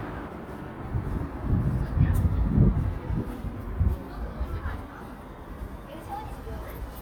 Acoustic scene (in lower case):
residential area